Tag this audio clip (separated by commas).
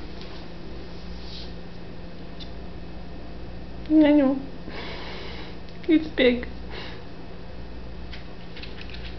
ferret dooking